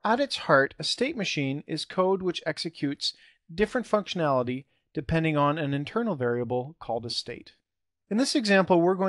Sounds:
Speech

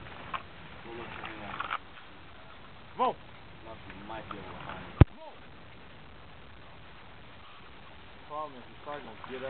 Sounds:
Animal, Speech

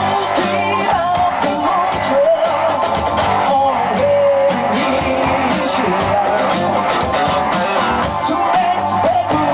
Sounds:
Music

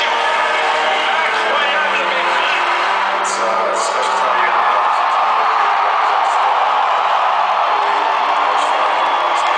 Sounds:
Speech, Music

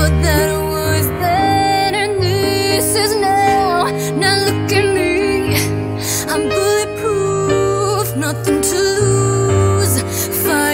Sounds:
Music

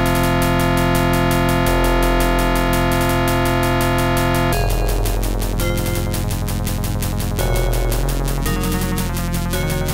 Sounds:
Music

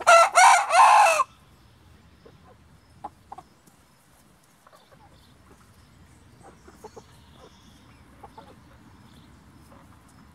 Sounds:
chicken crowing

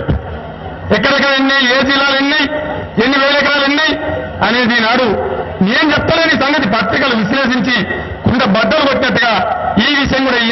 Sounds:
man speaking, Narration, Speech

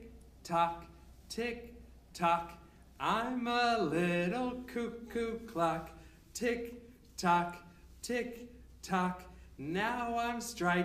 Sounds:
Speech

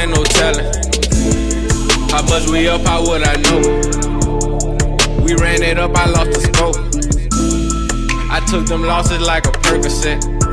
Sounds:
Rhythm and blues, Soul music, Music, Jazz

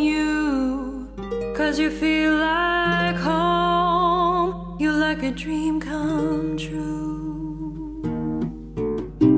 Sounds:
Music

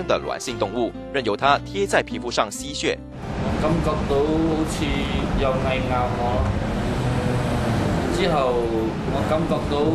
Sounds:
Music, Speech

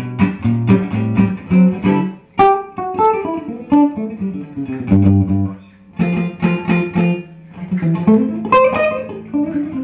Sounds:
Music, Musical instrument, Acoustic guitar, inside a small room, Guitar, Plucked string instrument, Electronic tuner

